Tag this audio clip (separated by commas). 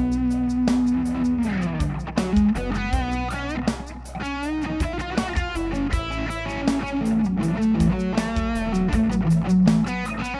Music, Guitar, Plucked string instrument, Musical instrument